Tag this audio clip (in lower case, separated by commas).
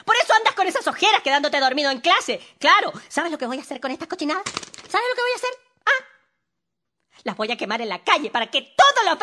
speech